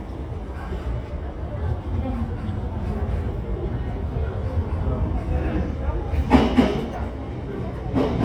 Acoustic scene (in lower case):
subway station